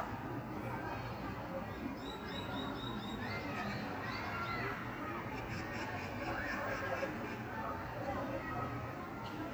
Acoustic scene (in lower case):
park